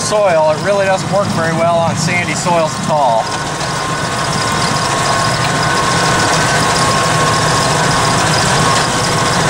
A man talks while a vehicle moves